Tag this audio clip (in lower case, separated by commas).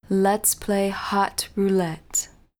speech, female speech, human voice